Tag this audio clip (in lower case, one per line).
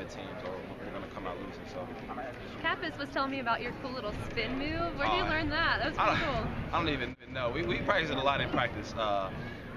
speech
male speech
run